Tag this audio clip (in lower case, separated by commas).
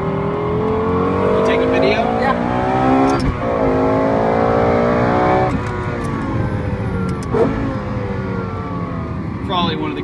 car, speech, vehicle